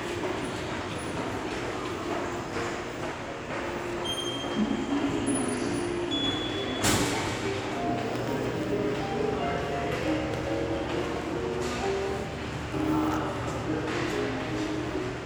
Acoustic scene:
subway station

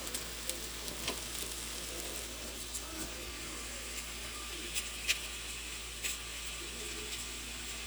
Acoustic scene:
kitchen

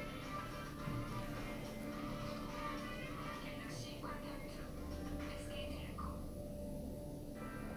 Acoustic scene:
elevator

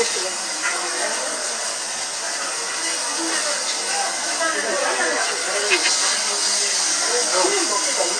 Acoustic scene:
restaurant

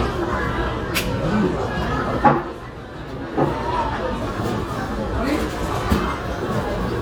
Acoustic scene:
cafe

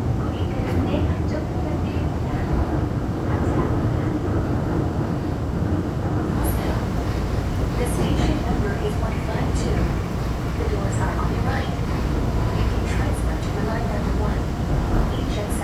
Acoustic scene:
subway train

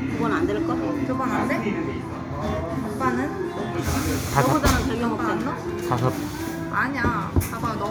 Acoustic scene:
cafe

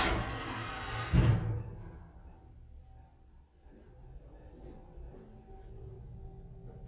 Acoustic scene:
elevator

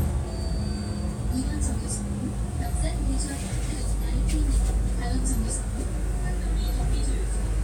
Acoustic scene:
bus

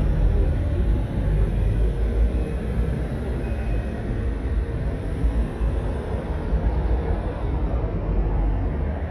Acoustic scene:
street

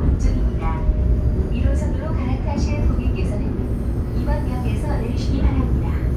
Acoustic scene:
subway train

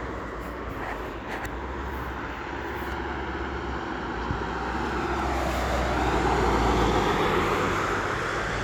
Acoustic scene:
street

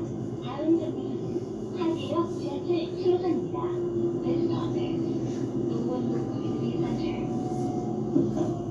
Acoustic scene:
bus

